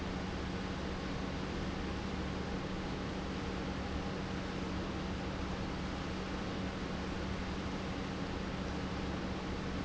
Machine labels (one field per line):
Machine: pump